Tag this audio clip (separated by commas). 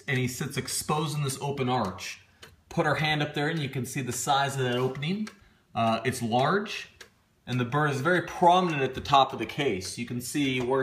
Tick-tock, Speech, Tick